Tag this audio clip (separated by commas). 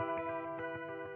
Electric guitar, Guitar, Music, Plucked string instrument, Musical instrument